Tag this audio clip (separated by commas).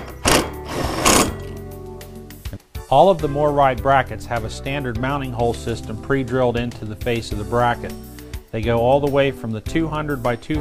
Speech, Music, inside a small room